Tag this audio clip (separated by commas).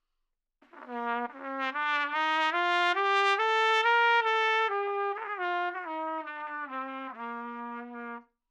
Musical instrument, Brass instrument, Trumpet, Music